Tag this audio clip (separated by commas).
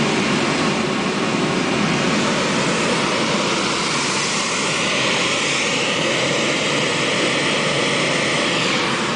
airplane